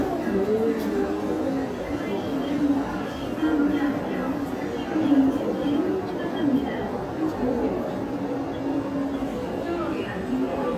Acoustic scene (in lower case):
subway station